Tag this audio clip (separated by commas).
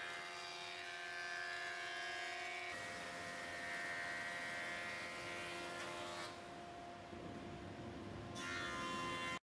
planing timber